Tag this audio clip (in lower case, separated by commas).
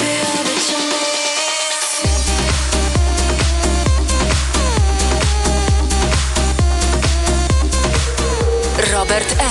funk, music